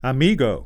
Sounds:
Human voice, man speaking, Speech

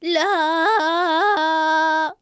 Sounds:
Human voice, Singing, Female singing

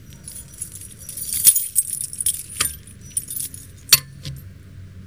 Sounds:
home sounds, Keys jangling

